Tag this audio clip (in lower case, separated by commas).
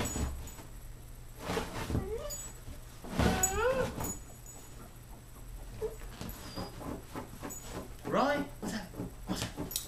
domestic animals, animal, dog, speech